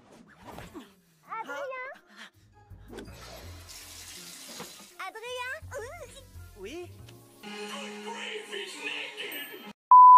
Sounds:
Speech, Music

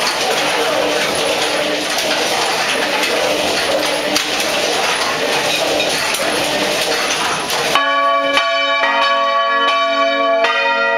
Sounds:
Bell

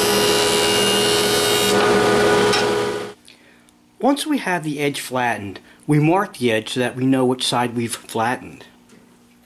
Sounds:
planing timber

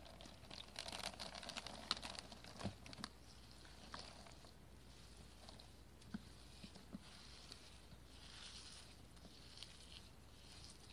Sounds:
squishing water

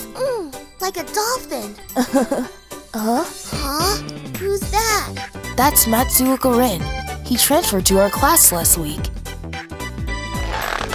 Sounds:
Speech, Music

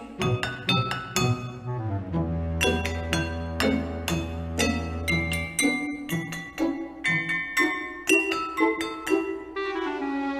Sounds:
Glass, Chink, Music

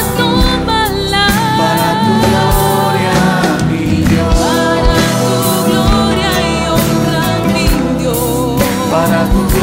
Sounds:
Music, Christian music

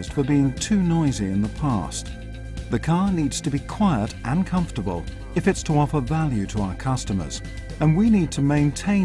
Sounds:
Speech, Music

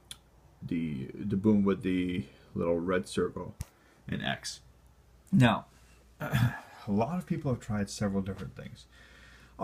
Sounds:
Speech

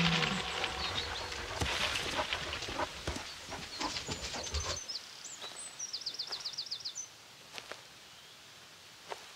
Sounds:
Bird vocalization, Environmental noise

